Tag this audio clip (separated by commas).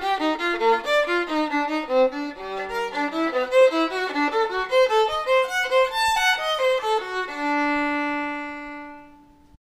Musical instrument, Music, fiddle